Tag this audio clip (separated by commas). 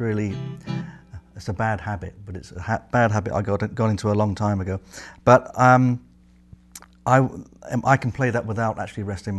Guitar, Music, Musical instrument, Electric guitar, Strum, Plucked string instrument, Speech